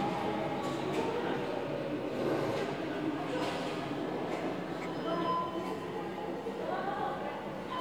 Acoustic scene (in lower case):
subway station